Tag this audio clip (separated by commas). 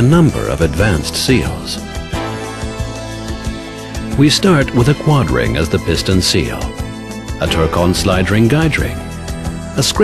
Music, Speech